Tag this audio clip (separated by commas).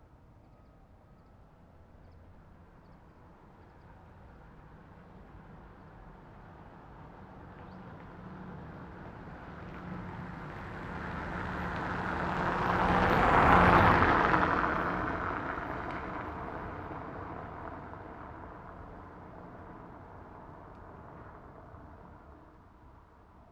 Vehicle, Car, Car passing by, Motor vehicle (road)